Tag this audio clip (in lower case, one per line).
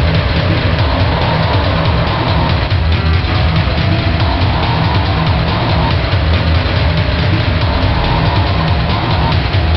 music
vehicle